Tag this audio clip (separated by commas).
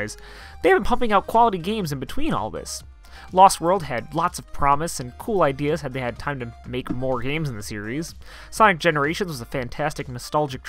Speech